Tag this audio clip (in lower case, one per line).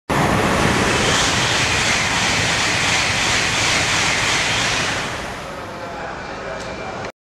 speech